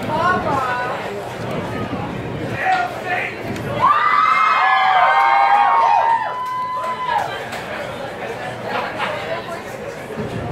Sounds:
speech

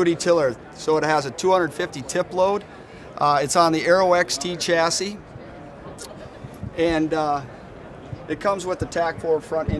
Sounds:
speech

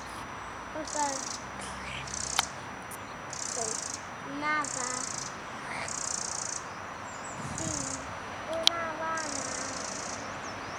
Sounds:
animal, speech

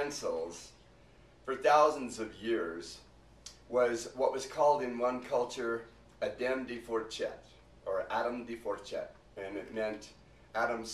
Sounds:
speech

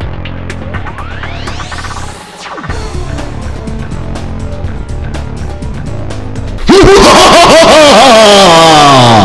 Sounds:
music

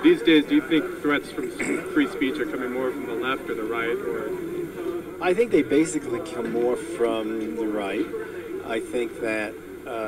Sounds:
speech, conversation, male speech

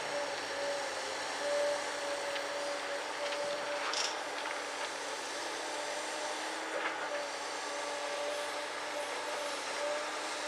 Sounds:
vehicle, outside, urban or man-made

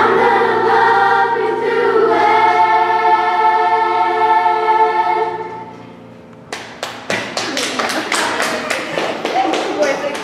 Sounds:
singing choir

